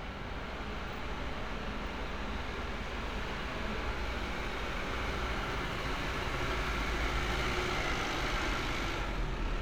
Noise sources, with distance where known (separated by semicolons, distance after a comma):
large-sounding engine, near